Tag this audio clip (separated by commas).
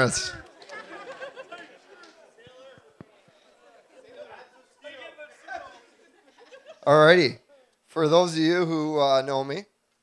Narration, Male speech, Speech